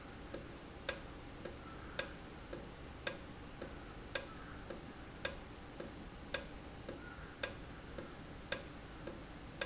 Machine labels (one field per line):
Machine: valve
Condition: normal